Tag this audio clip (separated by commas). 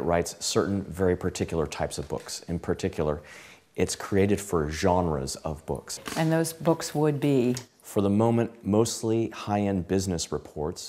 Speech